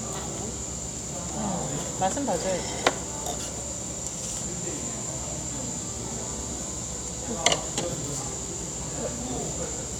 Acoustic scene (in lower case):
cafe